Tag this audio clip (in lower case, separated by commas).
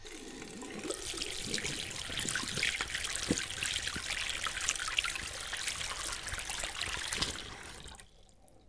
domestic sounds, water, sink (filling or washing)